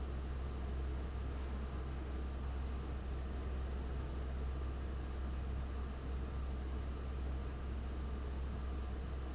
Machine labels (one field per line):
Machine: fan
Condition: abnormal